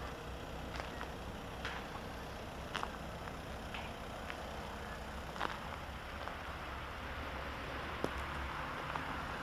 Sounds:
Car, Vehicle

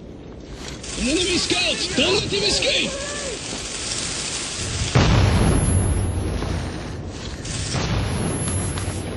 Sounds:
Speech

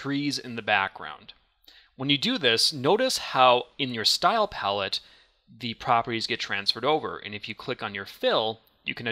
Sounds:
Speech

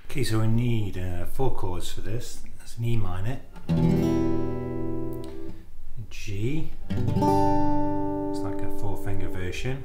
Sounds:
Strum, Acoustic guitar, Musical instrument, Speech, Guitar, Plucked string instrument, Music

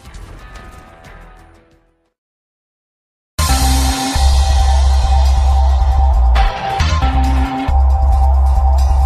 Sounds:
Music

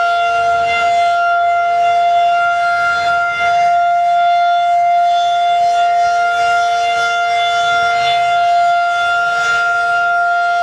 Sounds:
Civil defense siren, Siren

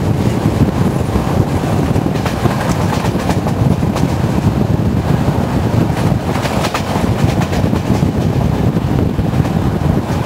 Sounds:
Wind noise (microphone), Wind

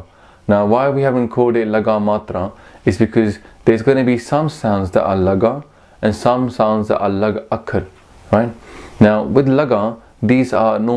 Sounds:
Speech

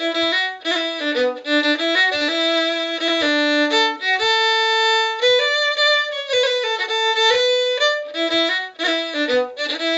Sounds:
Music, fiddle, Musical instrument, Violin

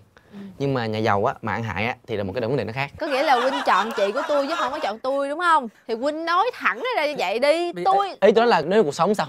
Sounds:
Speech

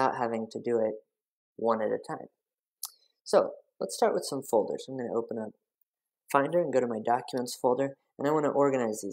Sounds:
Narration

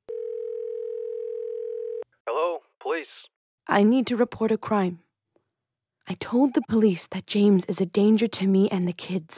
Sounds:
Dial tone, Speech, inside a small room

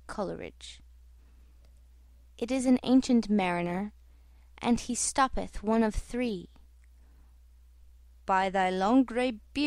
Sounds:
Speech

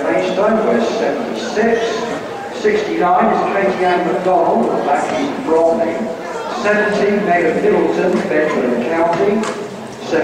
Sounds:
outside, urban or man-made, Run, Speech

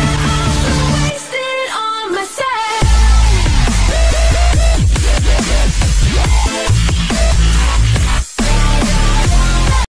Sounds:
Music, Dubstep, Electronic music

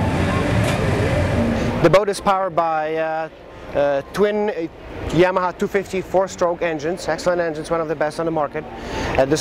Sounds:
Speech

